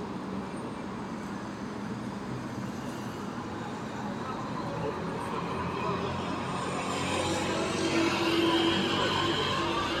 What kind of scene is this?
street